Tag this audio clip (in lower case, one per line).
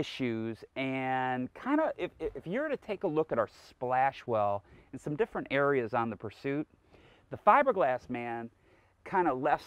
speech